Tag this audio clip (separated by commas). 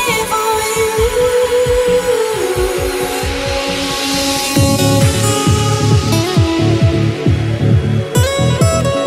Music, Trance music